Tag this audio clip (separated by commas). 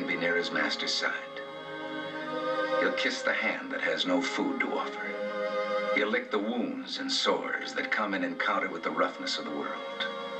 Speech, Music